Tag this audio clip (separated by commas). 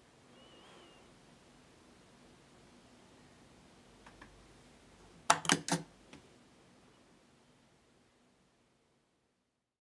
Single-lens reflex camera